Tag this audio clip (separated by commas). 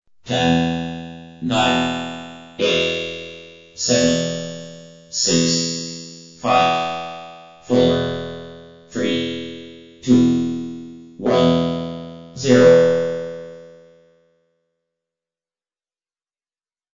Human voice, Speech, Speech synthesizer